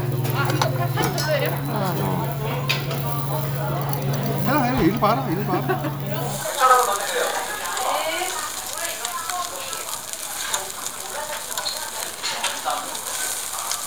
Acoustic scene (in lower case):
restaurant